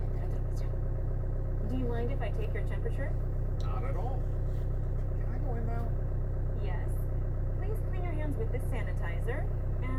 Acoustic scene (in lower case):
car